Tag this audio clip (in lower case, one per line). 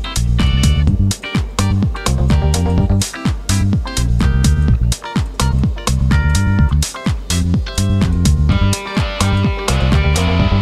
music